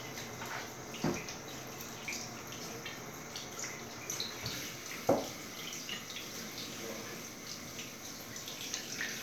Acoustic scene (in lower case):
restroom